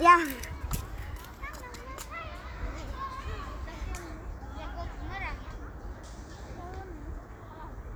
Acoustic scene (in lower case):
park